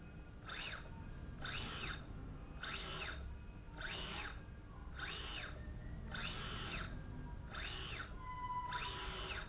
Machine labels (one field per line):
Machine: slide rail